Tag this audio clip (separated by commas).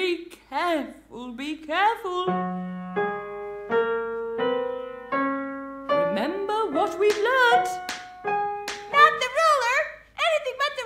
Speech, Music